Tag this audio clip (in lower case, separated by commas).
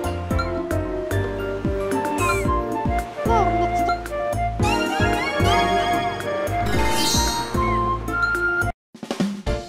speech, music